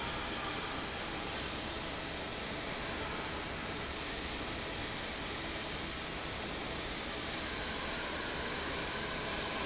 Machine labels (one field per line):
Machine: fan